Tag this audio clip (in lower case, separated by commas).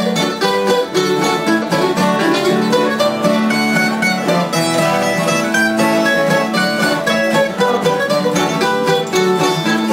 bluegrass, music